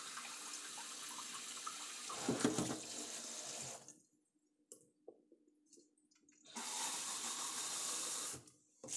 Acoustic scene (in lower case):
kitchen